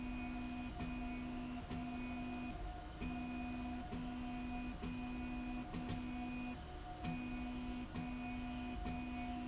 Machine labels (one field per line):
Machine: slide rail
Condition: normal